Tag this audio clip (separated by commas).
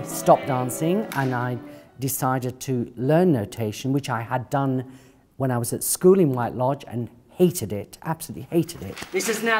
Speech, Music